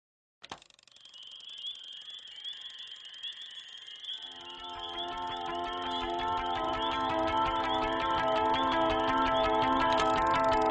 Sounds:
Music

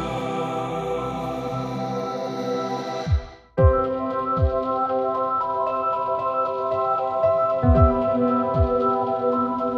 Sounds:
Sound effect, Music

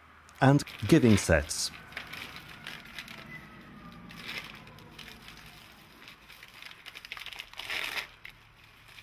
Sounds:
Speech, Crackle

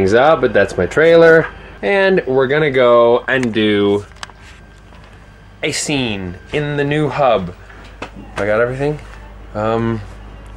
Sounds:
Speech

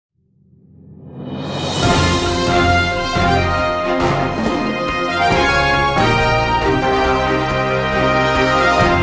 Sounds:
Theme music

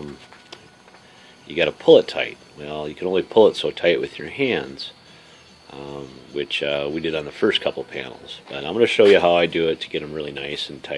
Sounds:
Speech

